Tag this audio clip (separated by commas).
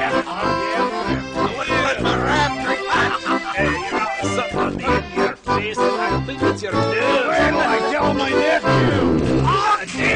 Music, Speech